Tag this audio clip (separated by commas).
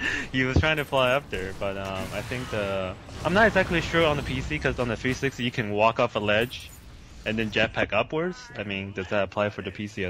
Speech